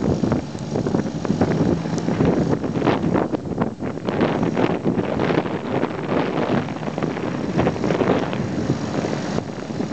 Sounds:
speedboat, Water vehicle, Vehicle

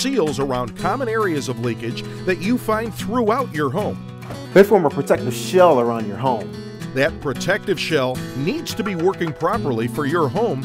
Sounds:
Music, Speech

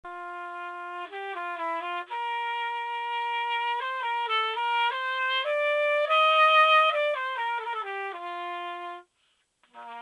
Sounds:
woodwind instrument

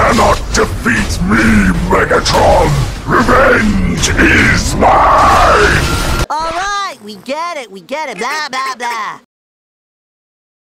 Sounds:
Speech

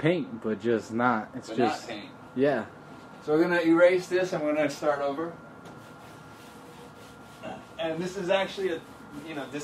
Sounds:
Speech

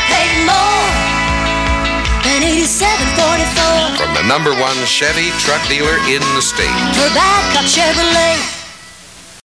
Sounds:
Speech, Music

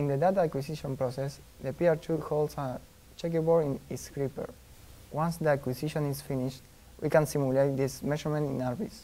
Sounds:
Speech

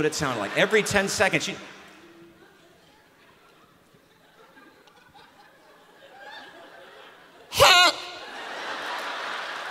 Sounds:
Speech

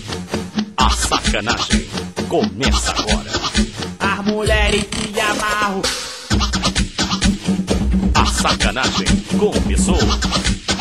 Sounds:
Scratching (performance technique)

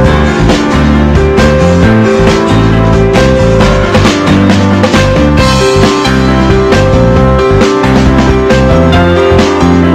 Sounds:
Music

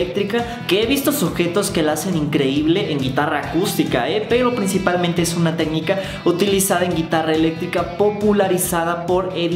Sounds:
Speech, Music

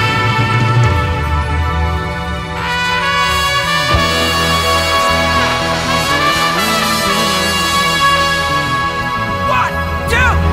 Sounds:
Music

